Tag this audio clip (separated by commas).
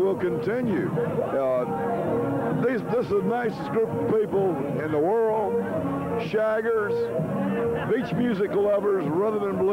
Speech, Music